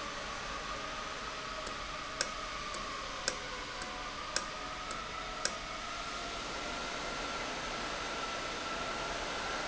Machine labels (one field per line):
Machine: valve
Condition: normal